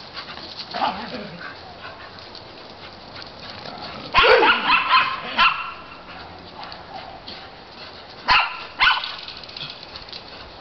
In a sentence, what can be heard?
A small dog growling, a larger dog responding